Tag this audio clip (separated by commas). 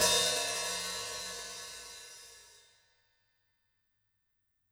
Percussion, Cymbal, Musical instrument, Music, Hi-hat